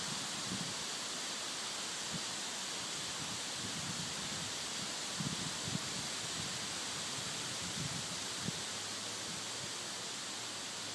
Air rustles the leaves on trees